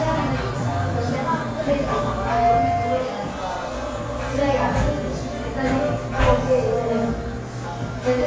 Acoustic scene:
cafe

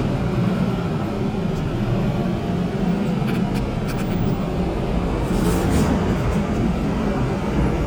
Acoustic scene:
subway train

